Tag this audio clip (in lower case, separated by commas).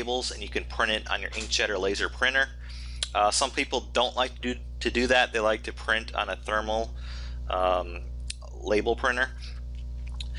speech